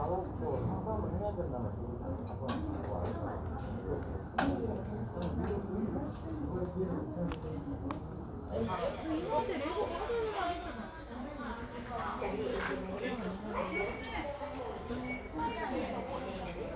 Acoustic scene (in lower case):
crowded indoor space